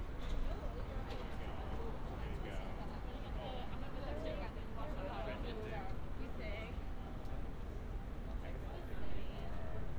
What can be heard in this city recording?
person or small group talking